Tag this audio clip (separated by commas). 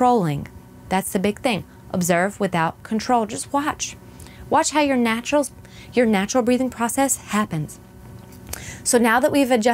Speech